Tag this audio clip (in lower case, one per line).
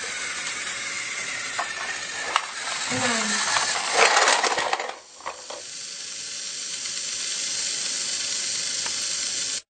speech